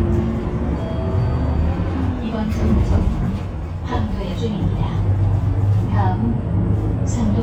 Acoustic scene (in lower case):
bus